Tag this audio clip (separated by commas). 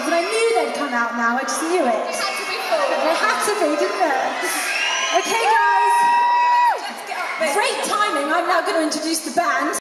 Speech